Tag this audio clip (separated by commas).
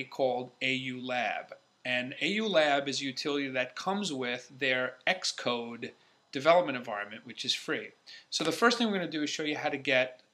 Speech